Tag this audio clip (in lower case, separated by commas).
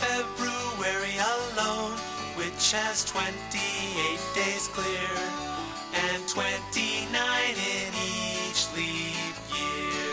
music